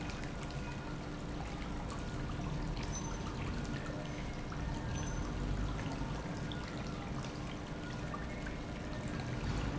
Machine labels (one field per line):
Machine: pump